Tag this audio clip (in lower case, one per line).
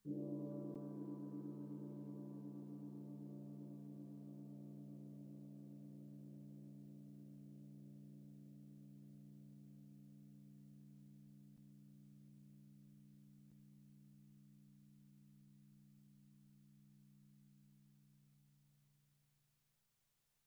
music
gong
percussion
musical instrument